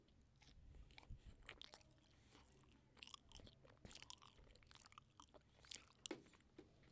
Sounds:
mastication

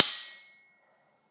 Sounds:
domestic sounds, cutlery

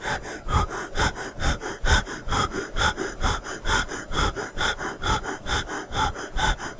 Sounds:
breathing, respiratory sounds

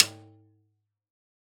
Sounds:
music, musical instrument, snare drum, percussion, drum

